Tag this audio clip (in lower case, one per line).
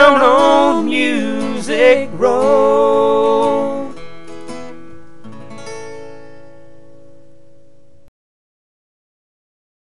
singing
music